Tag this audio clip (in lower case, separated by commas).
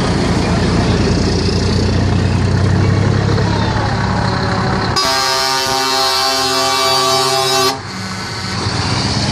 truck, speech, vehicle